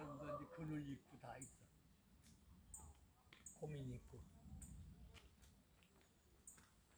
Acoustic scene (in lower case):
park